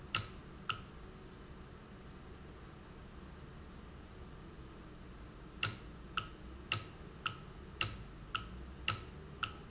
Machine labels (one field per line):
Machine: valve